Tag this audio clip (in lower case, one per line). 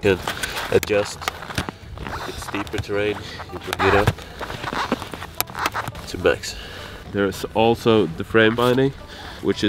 skiing